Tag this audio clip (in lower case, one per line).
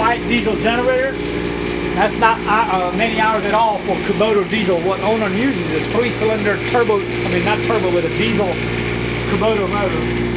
speech